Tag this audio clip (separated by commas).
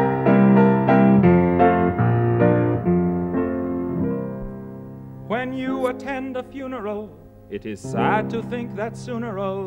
Keyboard (musical), Piano